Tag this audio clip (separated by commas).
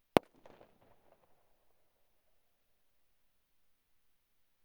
Explosion, Fireworks